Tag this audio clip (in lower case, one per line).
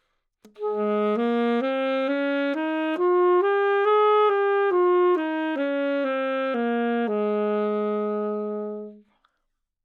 musical instrument
music
woodwind instrument